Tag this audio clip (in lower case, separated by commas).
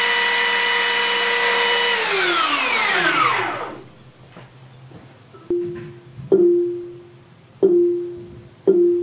xylophone, music